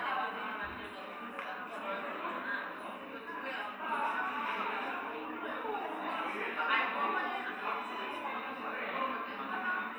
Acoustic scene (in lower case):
cafe